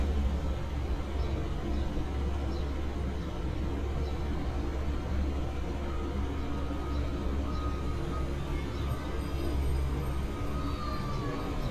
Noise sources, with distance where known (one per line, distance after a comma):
unidentified alert signal, near